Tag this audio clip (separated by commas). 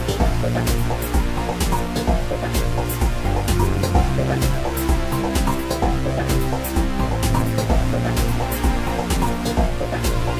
Music